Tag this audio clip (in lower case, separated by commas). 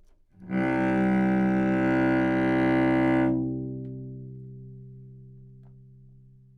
musical instrument, bowed string instrument, music